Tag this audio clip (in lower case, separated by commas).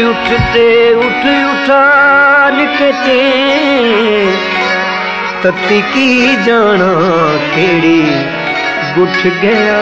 singing, carnatic music, music